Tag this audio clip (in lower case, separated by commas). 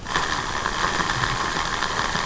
tools